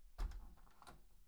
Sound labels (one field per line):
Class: window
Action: closing